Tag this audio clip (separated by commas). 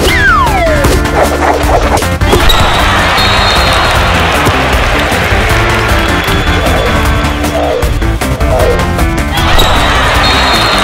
basketball bounce